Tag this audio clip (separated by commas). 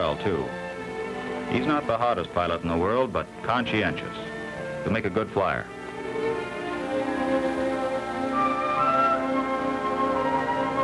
Music, Speech